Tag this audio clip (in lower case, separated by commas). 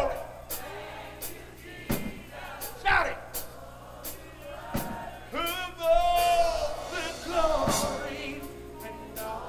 male singing, speech, music